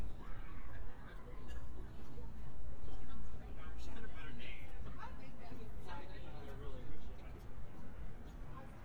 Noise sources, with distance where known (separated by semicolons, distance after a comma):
person or small group talking, near